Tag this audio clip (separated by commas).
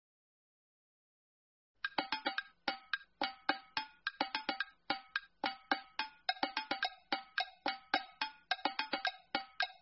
Music, Musical instrument